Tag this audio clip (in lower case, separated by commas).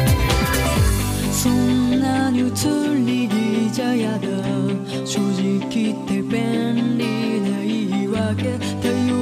music